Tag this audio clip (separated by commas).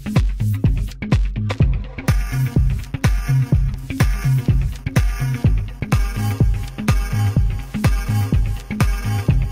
Music